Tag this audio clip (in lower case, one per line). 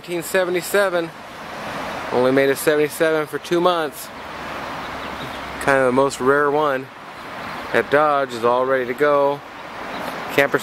rain on surface
speech